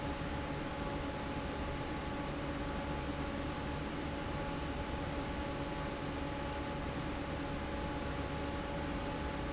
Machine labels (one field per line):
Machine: fan